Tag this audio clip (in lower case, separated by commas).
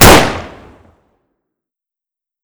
explosion, gunshot